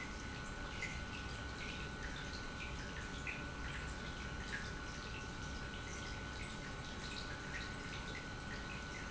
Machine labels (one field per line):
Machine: pump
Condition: normal